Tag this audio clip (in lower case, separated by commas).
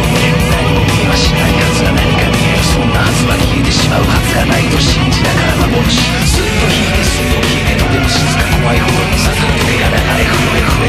music, angry music